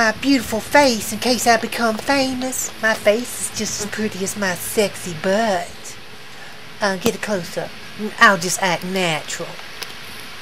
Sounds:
Speech

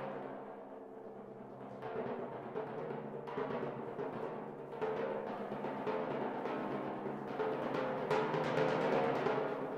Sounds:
Drum kit, Drum, Musical instrument, Timpani, Snare drum, Percussion, Music

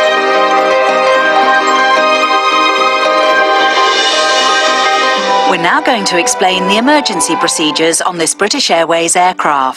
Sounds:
Music, Speech

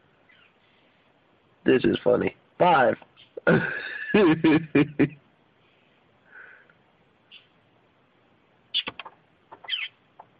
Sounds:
Animal, Speech

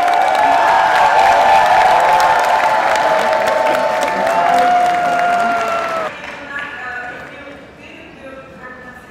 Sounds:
Speech

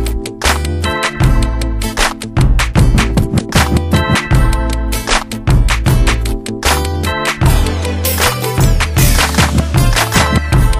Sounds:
Music

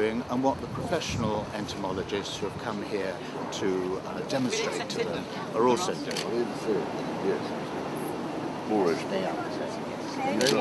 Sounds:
Speech

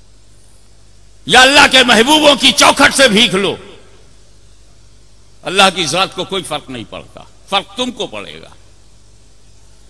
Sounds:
man speaking, Narration, Speech

